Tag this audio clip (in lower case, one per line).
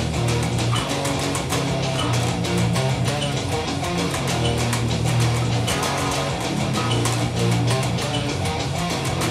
music